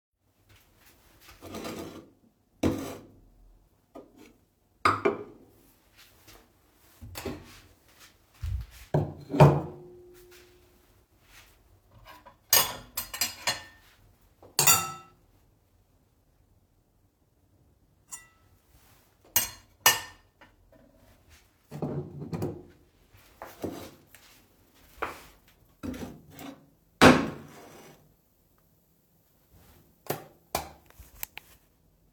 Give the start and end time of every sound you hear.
[0.49, 1.43] footsteps
[1.34, 3.16] cutlery and dishes
[3.84, 5.45] cutlery and dishes
[5.95, 9.23] footsteps
[6.96, 7.88] cutlery and dishes
[8.22, 10.20] cutlery and dishes
[10.17, 12.38] footsteps
[11.95, 15.18] cutlery and dishes
[13.78, 14.54] footsteps
[17.90, 18.36] cutlery and dishes
[18.57, 19.33] footsteps
[19.11, 28.01] cutlery and dishes
[20.94, 25.76] footsteps
[29.93, 31.68] light switch

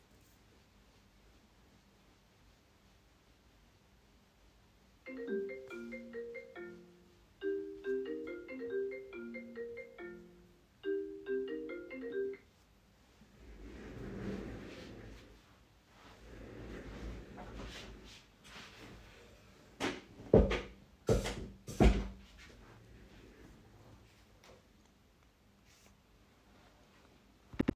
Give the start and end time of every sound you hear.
[5.09, 12.66] phone ringing

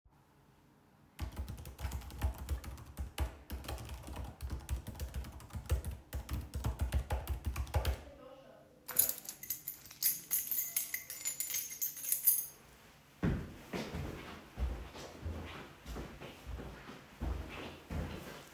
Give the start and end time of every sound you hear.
[1.15, 8.12] keyboard typing
[8.86, 12.55] keys
[13.21, 18.54] footsteps

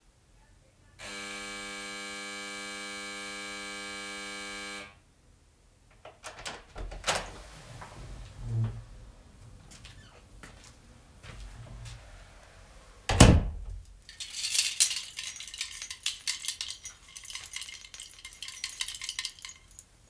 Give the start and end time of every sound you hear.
[0.91, 5.08] bell ringing
[5.94, 10.79] door
[9.65, 12.47] footsteps
[13.05, 13.92] door
[14.11, 20.10] keys

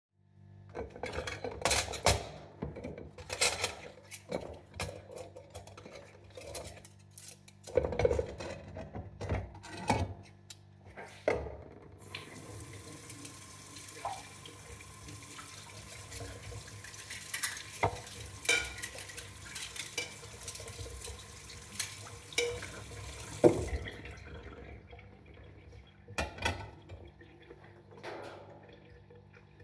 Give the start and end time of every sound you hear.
[0.55, 11.72] cutlery and dishes
[11.81, 29.63] running water
[12.92, 13.44] cutlery and dishes
[15.53, 24.30] cutlery and dishes
[25.96, 26.95] cutlery and dishes

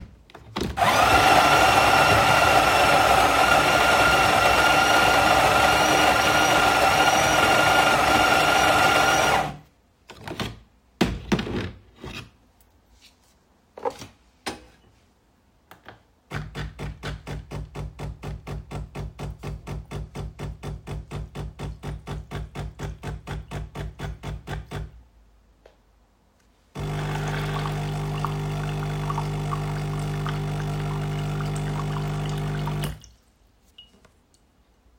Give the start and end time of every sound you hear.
[0.37, 9.87] coffee machine
[9.95, 10.90] coffee machine
[11.00, 11.79] coffee machine
[11.95, 12.32] coffee machine
[13.74, 14.17] coffee machine
[14.40, 14.68] coffee machine
[15.61, 25.25] coffee machine
[26.54, 33.56] coffee machine

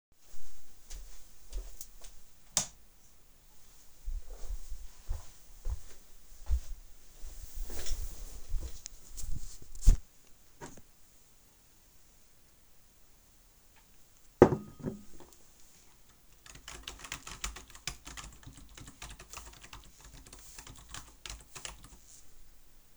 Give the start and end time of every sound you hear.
[0.85, 2.13] footsteps
[2.54, 2.75] light switch
[4.04, 6.72] footsteps
[14.39, 15.03] cutlery and dishes
[16.43, 21.76] keyboard typing

